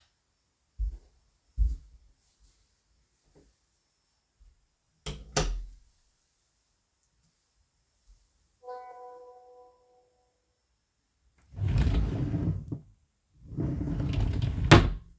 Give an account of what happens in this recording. I open my bedroom door, turn on the light, step in, then close the door. Afterwards, my phone rings and I open a drawer.